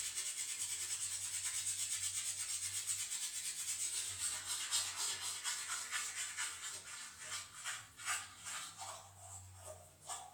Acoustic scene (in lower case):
restroom